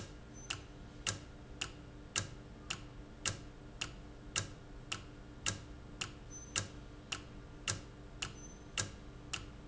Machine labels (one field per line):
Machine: valve